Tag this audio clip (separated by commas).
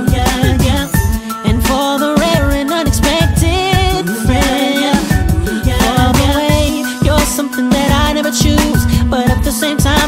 Exciting music, Music